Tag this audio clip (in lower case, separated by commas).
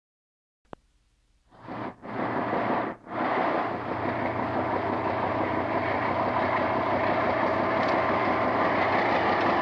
rail transport, clickety-clack, train wagon, train